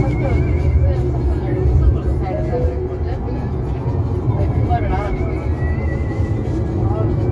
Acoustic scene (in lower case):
car